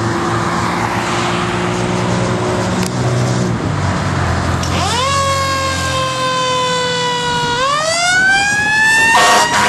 Vehicle driving by and an emergency vehicle turns on the siren and honks